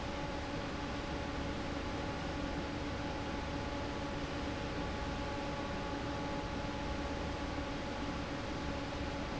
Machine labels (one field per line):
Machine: fan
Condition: normal